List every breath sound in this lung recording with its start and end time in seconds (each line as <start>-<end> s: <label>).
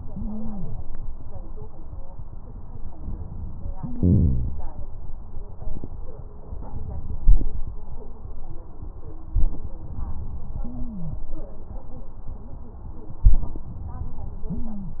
0.12-0.83 s: stridor
10.58-11.29 s: stridor
14.48-15.00 s: stridor